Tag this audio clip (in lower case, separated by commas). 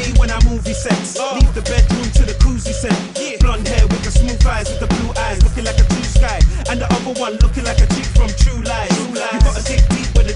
sound effect, music